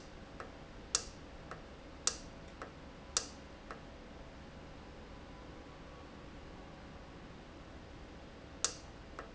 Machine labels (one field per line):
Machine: valve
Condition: normal